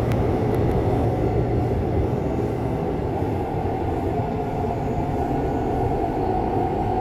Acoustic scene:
subway train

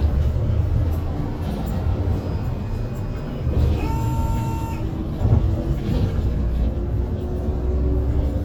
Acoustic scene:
bus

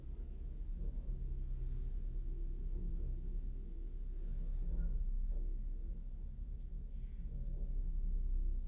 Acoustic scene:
elevator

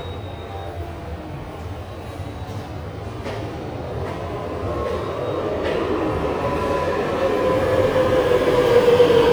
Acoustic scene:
subway station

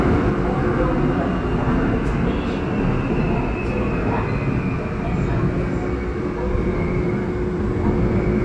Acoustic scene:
subway train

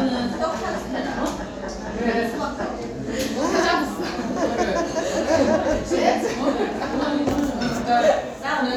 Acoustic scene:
crowded indoor space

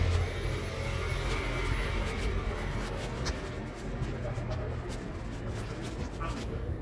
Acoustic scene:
residential area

